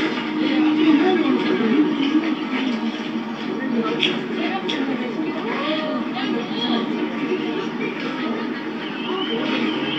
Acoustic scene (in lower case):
park